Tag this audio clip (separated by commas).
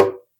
Tap